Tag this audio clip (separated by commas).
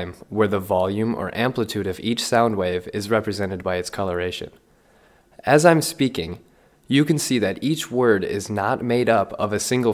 Speech